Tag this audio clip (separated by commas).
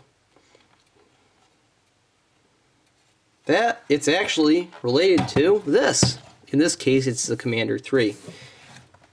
Speech